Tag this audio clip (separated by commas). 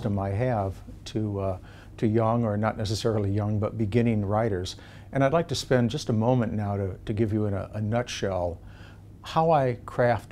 Speech